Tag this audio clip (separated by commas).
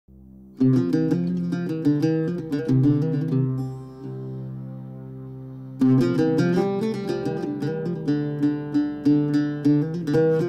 Plucked string instrument, Mandolin, Music